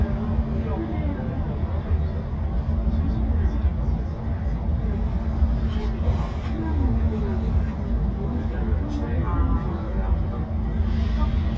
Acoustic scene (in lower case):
bus